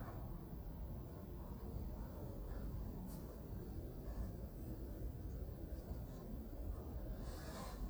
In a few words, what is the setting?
residential area